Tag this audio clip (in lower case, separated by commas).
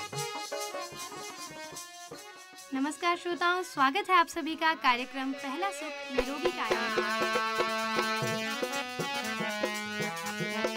speech, music